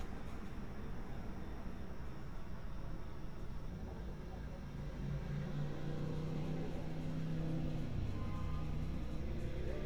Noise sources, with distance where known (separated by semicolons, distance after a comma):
medium-sounding engine, far; car horn, far